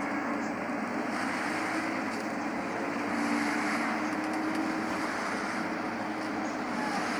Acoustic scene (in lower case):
bus